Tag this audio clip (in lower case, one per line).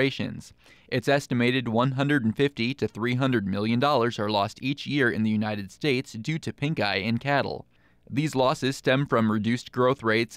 speech